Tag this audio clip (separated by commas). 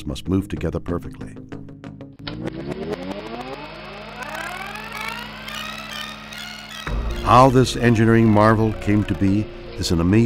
Speech